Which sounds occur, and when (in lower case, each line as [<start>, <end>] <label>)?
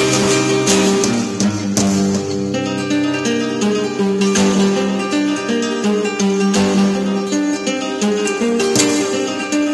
[0.00, 9.73] music